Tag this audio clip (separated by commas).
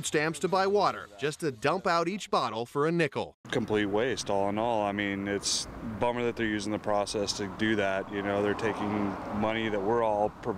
Speech